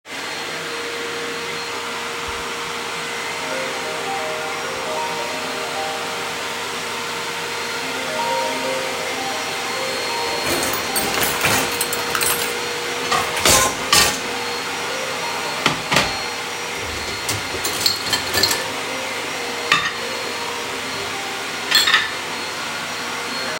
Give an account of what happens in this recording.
I turned on the vacuum cleaner while organizing dishes in the kitchen. At the same time a phone call notification could be heard. The vacuum cleaner was running while the sounds of plates, glasses and cutlery were audible.